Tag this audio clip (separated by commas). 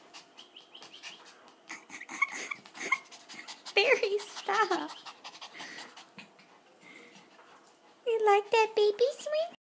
Speech